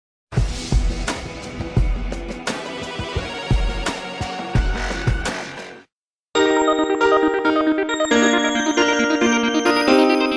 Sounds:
synthesizer

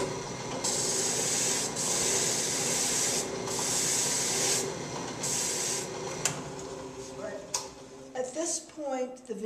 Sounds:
filing (rasp), wood, rub

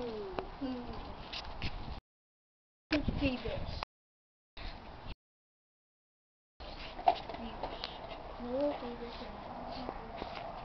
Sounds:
speech

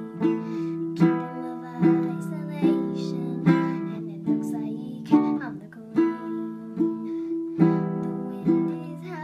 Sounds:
music, plucked string instrument, musical instrument, strum, acoustic guitar, guitar

